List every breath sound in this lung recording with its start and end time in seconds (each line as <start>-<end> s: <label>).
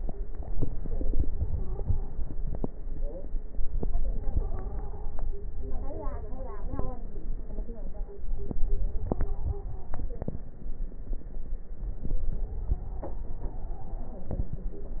1.45-2.35 s: stridor
3.97-5.11 s: stridor
9.03-10.11 s: stridor
12.32-14.49 s: stridor